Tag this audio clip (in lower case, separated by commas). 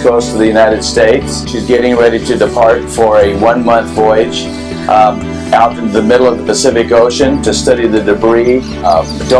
music, speech